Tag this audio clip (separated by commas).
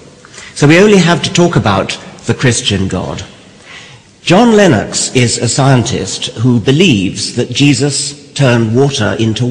Speech